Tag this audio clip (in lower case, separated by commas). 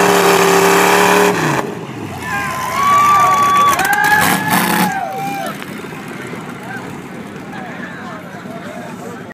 speech, truck, vehicle